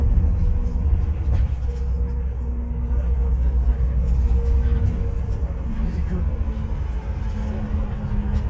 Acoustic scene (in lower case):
bus